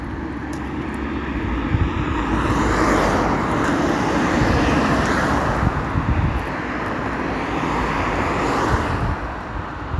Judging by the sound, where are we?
on a street